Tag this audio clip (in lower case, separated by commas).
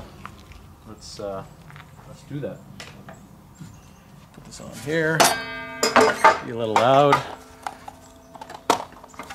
speech, outside, rural or natural